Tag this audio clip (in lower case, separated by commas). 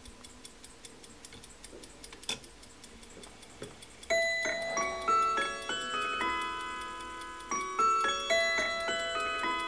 tick-tock, music